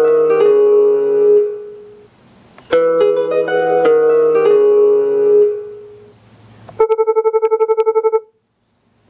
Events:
0.0s-2.0s: ringtone
0.0s-9.0s: medium engine (mid frequency)
2.5s-2.6s: tick
2.7s-6.1s: ringtone
6.6s-6.7s: tick
6.8s-8.4s: ringtone

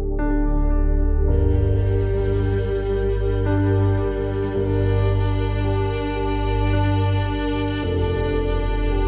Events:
0.0s-9.0s: music

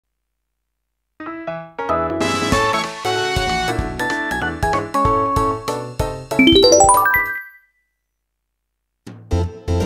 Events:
0.0s-1.1s: background noise
0.0s-9.8s: video game sound
1.2s-7.4s: music
6.4s-8.0s: sound effect
7.8s-9.0s: background noise
9.0s-9.8s: music

